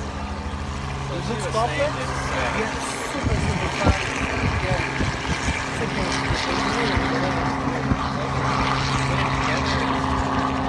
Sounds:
Wind noise (microphone), Wind

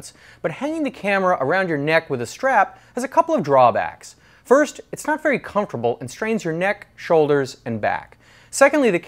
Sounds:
Speech

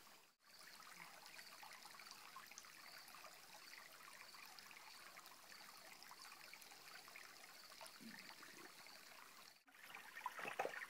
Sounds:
Stream, dribble

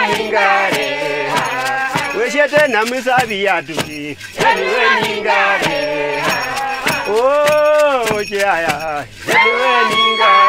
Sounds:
Choir, Female singing, Male singing, Music

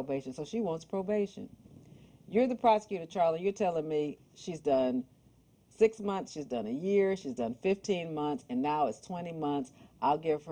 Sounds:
Speech, Female speech

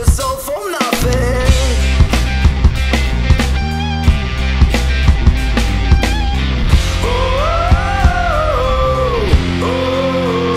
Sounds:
Music, Punk rock, Heavy metal

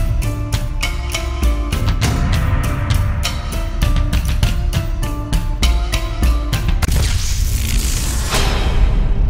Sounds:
Music

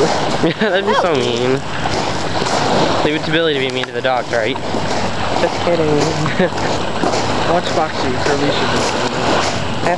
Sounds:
sloshing water

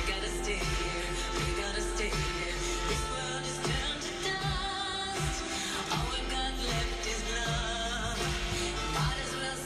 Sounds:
Funk, Music, Pop music

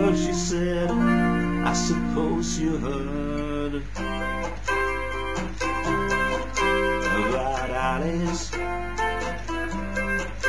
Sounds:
Music

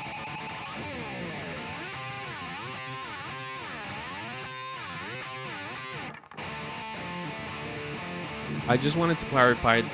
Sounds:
Music, Speech

